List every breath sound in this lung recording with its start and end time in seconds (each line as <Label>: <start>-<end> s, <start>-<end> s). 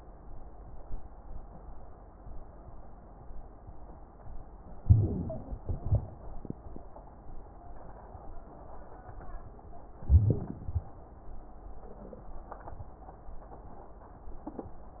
Inhalation: 4.83-5.64 s, 10.06-10.69 s
Exhalation: 5.67-6.48 s, 10.68-11.18 s
Wheeze: 4.83-5.64 s, 10.05-10.65 s
Crackles: 5.66-6.46 s